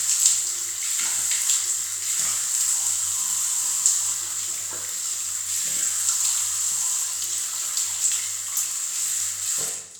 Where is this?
in a restroom